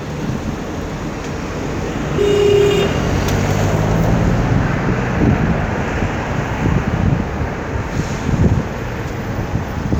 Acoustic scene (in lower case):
street